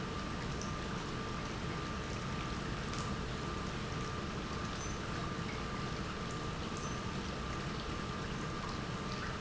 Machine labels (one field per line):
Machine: pump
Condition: normal